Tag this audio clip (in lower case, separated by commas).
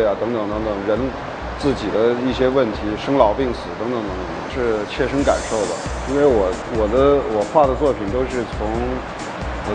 speech, music